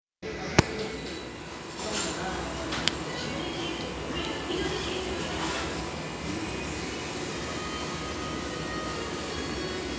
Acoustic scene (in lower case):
restaurant